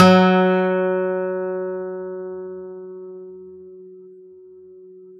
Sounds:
Musical instrument, Music, Plucked string instrument, Guitar, Acoustic guitar

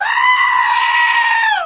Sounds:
Screaming, Human voice

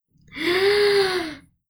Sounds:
Breathing, Respiratory sounds

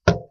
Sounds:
Tap

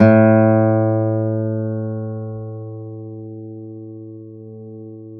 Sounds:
Acoustic guitar, Musical instrument, Guitar, Plucked string instrument, Music

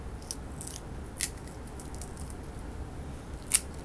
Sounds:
Crack

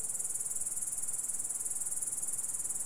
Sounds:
Insect, Wild animals, Animal, Cricket

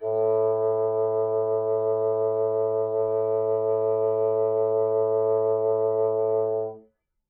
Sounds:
woodwind instrument, Musical instrument, Music

